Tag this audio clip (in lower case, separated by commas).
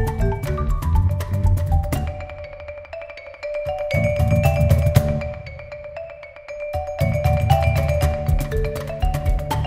music, xylophone, percussion, musical instrument